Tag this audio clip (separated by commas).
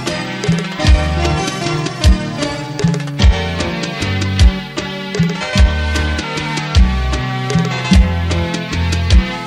Tender music, Music